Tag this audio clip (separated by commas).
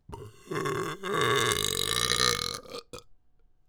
Burping